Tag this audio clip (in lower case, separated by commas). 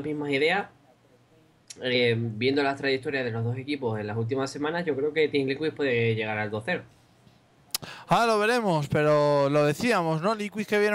speech